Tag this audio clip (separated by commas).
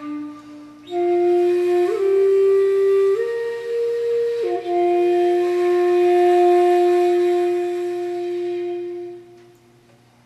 Music